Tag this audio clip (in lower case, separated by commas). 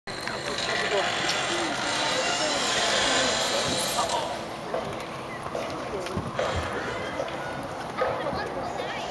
speech